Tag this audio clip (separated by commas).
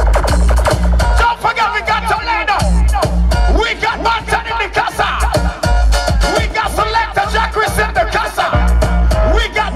Music